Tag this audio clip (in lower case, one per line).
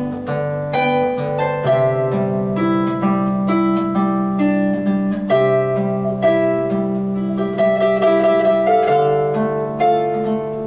playing harp